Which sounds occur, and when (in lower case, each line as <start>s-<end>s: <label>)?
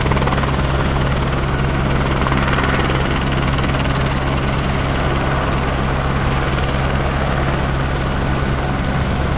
0.0s-9.3s: jet engine